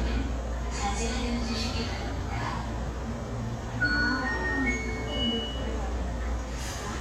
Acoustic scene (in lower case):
subway station